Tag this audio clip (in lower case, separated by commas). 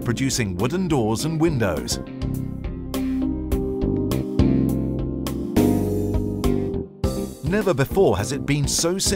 speech, music